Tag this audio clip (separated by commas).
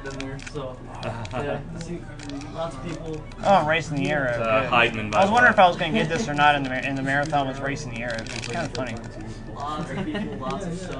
Speech